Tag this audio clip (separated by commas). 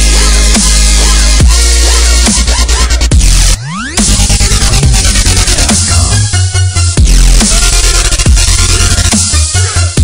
Music, Drum and bass